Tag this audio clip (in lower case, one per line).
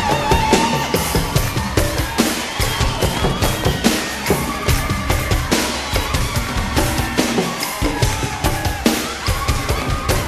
music